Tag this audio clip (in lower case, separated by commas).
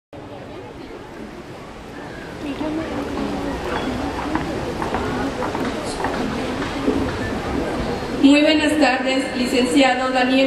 speech, monologue, female speech